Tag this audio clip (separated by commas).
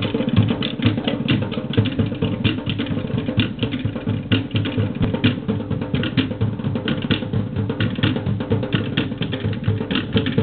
Music